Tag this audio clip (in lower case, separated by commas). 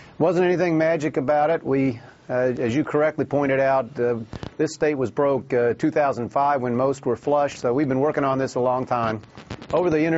speech